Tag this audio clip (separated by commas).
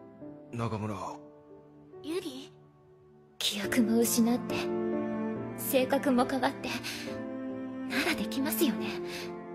Music, Female speech, Speech, Conversation, man speaking